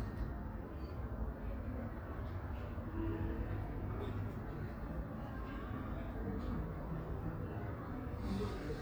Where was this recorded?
in a residential area